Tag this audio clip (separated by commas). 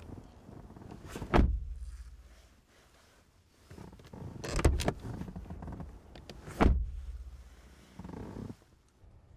opening or closing car doors